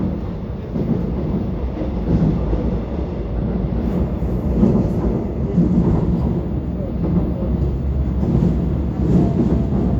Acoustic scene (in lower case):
subway train